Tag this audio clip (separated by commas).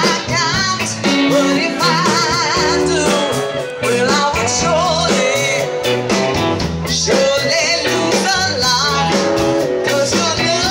Speech, Music